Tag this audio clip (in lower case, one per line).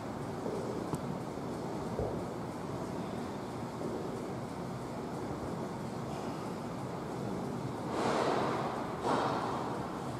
footsteps